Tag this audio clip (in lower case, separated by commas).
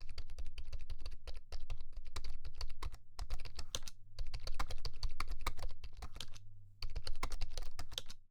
typing, domestic sounds, computer keyboard